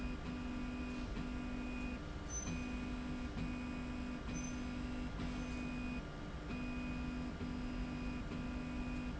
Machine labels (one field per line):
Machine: slide rail